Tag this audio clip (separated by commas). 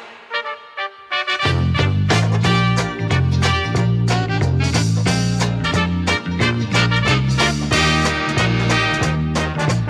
Music